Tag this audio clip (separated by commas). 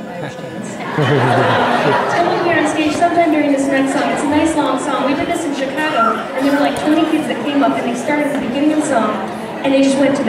Speech